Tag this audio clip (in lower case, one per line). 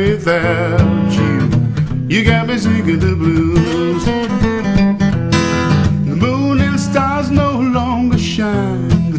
music
male singing